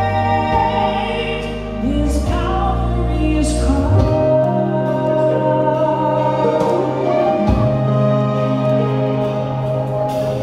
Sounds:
Singing, Music

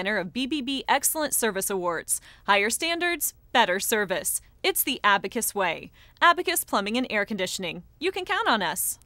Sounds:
Speech

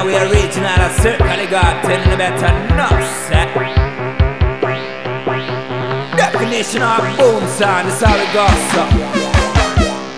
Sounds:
Music

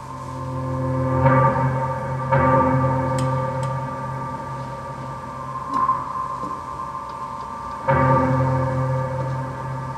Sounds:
Music, Percussion

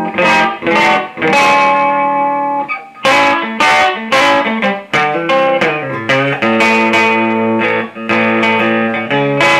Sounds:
Musical instrument, Acoustic guitar, Plucked string instrument, Music, Guitar

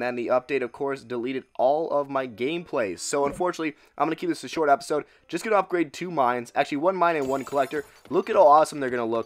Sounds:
Speech

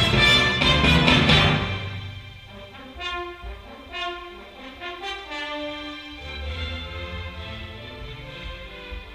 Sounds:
playing timpani

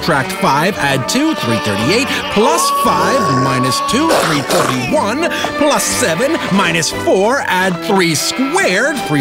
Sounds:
Bleat, Music, Speech

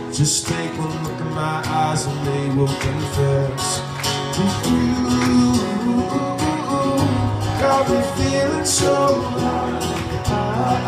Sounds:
Music

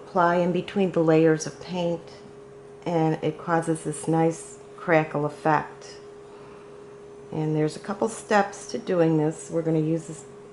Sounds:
Speech

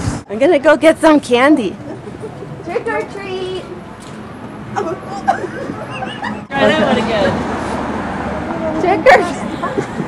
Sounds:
Vehicle, Speech

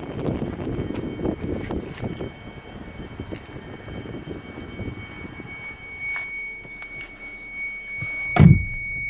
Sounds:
reversing beeps

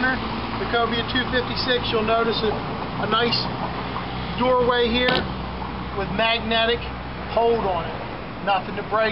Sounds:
Speech, Vehicle

